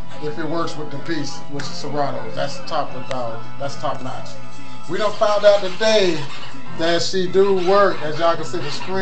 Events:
0.0s-9.0s: music
0.1s-2.1s: man speaking
2.3s-3.4s: man speaking
3.6s-4.4s: man speaking
4.9s-6.4s: man speaking
6.6s-9.0s: man speaking

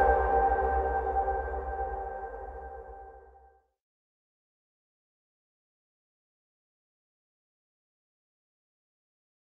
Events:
0.0s-3.6s: music

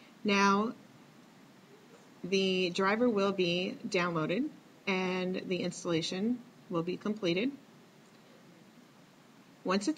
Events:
0.0s-9.9s: noise
0.2s-0.7s: woman speaking
2.2s-3.7s: woman speaking
3.9s-4.5s: woman speaking
4.8s-6.3s: woman speaking
6.7s-7.5s: woman speaking
9.7s-9.9s: woman speaking

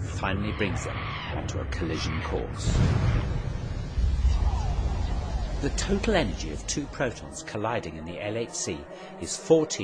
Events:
0.0s-2.5s: sound effect
0.2s-0.9s: male speech
1.5s-2.7s: male speech
2.5s-4.2s: explosion
4.3s-9.8s: sound effect
5.6s-9.8s: male speech

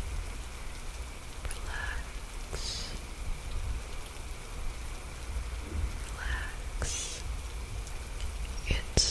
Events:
0.0s-9.1s: mechanisms
1.5s-2.0s: whispering
2.5s-2.9s: whispering
6.1s-6.6s: whispering
6.8s-7.2s: whispering
7.7s-7.9s: tick
8.1s-8.3s: tick
8.6s-9.1s: whispering

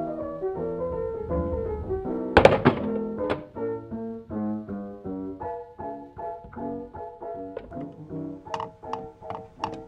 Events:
0.0s-9.8s: music
3.2s-3.4s: generic impact sounds
7.7s-8.0s: clicking

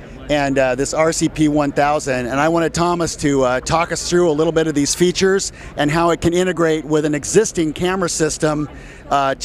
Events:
0.0s-0.3s: human voice
0.0s-9.4s: mechanisms
0.2s-5.5s: male speech
4.9s-5.0s: tick
5.5s-5.7s: breathing
5.7s-8.7s: male speech
8.6s-9.1s: human voice
8.7s-9.0s: breathing

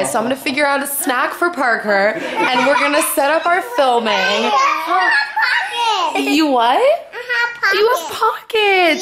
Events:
0.0s-2.1s: woman speaking
0.0s-9.0s: conversation
2.1s-3.1s: laughter
2.4s-4.6s: woman speaking
3.4s-6.2s: kid speaking
4.8s-5.1s: woman speaking
6.1s-7.1s: woman speaking
6.1s-6.5s: laughter
7.1s-8.2s: kid speaking
7.6s-9.0s: woman speaking

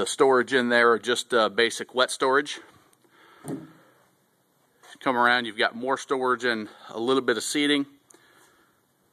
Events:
0.0s-2.6s: man speaking
0.0s-9.1s: background noise
4.9s-6.8s: man speaking
7.0s-8.0s: man speaking

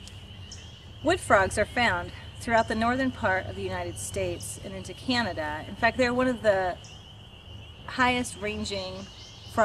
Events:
0.0s-9.6s: frog
0.0s-0.1s: generic impact sounds
1.0s-2.1s: woman speaking
2.4s-7.0s: woman speaking
7.9s-9.1s: woman speaking
8.9s-9.6s: bird song

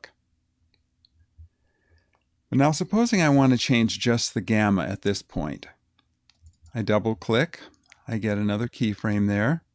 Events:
0.0s-0.1s: generic impact sounds
0.0s-9.7s: mechanisms
0.7s-0.8s: clicking
1.0s-1.1s: clicking
1.3s-1.5s: generic impact sounds
1.5s-2.2s: breathing
1.8s-1.9s: generic impact sounds
1.9s-2.0s: clicking
2.1s-2.2s: clicking
2.5s-5.8s: male speech
5.9s-6.0s: clicking
6.2s-6.4s: clicking
6.3s-6.7s: generic impact sounds
6.6s-7.7s: male speech
7.7s-7.9s: generic impact sounds
7.8s-9.7s: male speech
7.9s-8.0s: clicking

